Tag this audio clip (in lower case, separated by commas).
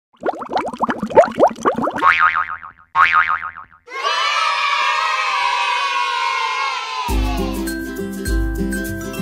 music